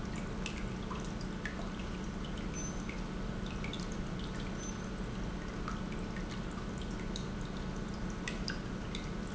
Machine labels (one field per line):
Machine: pump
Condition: normal